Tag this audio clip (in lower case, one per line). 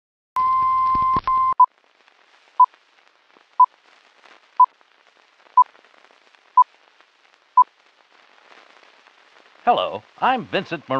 speech
sidetone